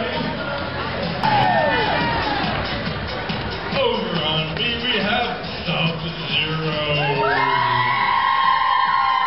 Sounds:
music
speech

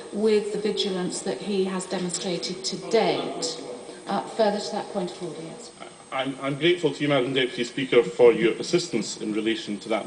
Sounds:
speech

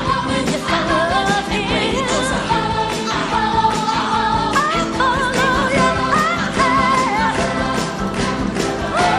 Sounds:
music
music of asia
choir

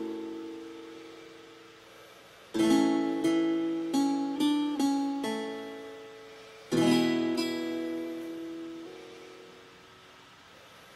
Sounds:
plucked string instrument
guitar
acoustic guitar
musical instrument
strum
music

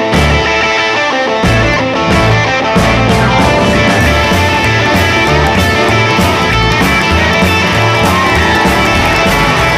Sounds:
musical instrument
music
double bass
rock music

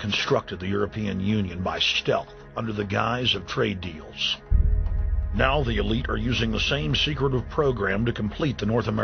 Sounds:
speech
music

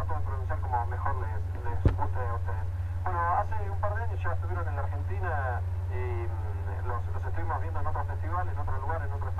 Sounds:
speech

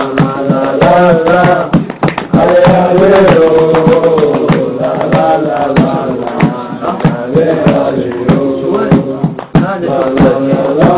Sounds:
speech

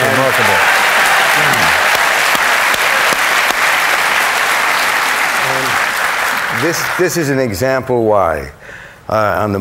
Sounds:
applause

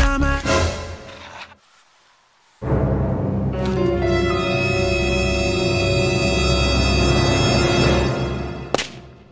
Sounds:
scary music
music
outside, urban or man-made
speech

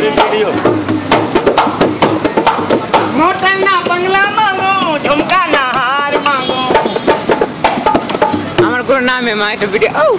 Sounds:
outside, urban or man-made
music
speech

